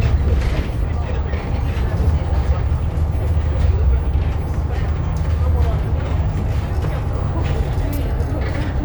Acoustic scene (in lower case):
bus